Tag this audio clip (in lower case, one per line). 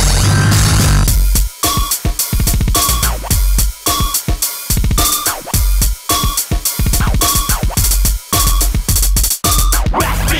disco
music